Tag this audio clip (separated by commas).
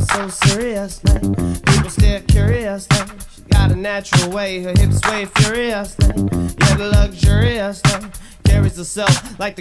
Funk, Music